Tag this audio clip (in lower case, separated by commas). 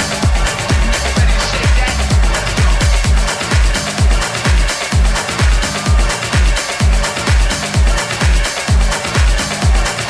blues, music